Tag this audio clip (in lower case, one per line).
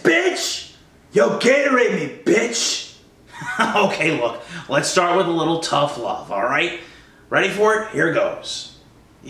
speech